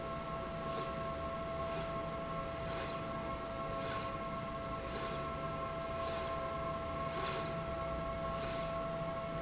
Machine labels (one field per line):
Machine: slide rail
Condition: normal